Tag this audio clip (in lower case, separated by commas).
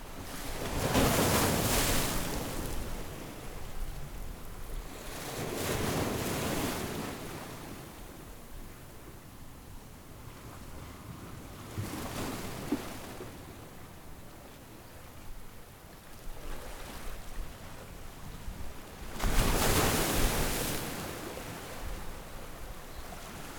waves, water, ocean